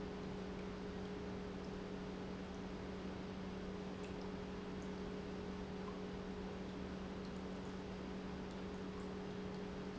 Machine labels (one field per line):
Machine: pump